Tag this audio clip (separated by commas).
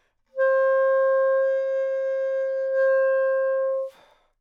Musical instrument, Wind instrument, Music